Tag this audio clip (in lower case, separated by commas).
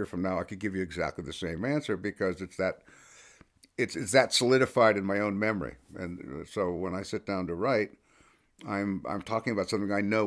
speech